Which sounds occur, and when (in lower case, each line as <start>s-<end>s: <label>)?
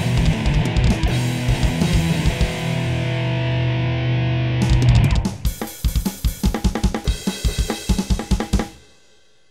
0.0s-9.5s: music